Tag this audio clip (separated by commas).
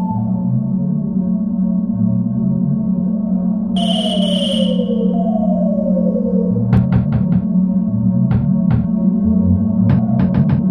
Music, inside a small room